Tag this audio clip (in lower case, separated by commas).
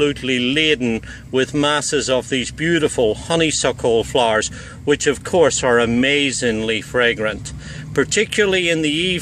speech